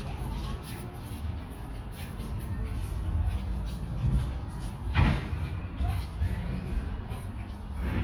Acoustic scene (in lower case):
park